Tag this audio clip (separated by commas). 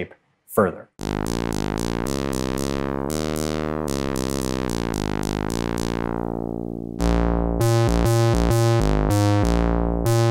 playing synthesizer